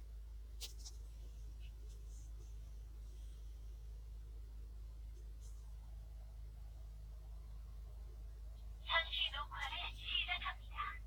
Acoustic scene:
car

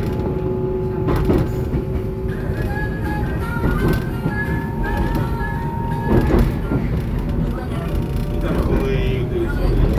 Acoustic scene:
subway train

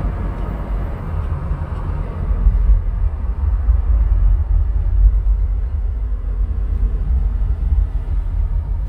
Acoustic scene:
car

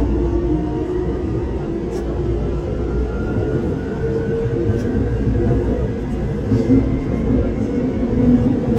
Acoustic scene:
subway train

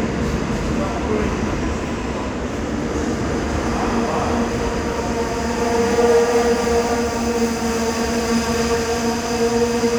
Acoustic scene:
subway station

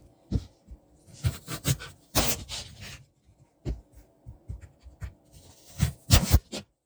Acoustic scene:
kitchen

